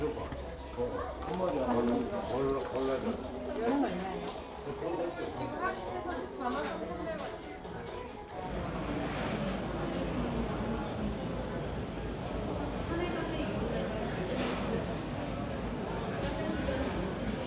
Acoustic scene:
crowded indoor space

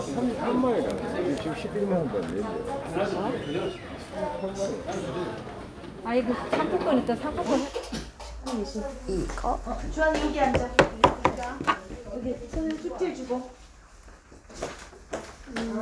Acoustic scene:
crowded indoor space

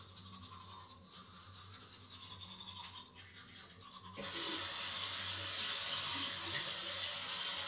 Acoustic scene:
restroom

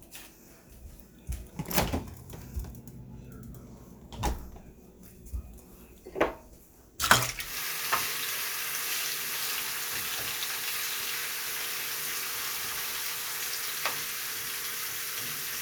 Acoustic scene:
kitchen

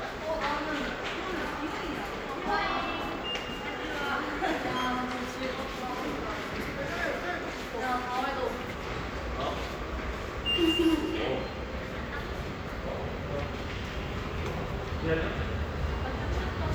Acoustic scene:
subway station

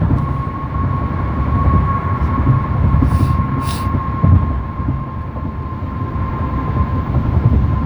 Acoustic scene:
car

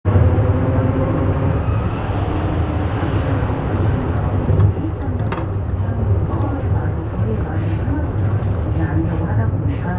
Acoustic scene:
bus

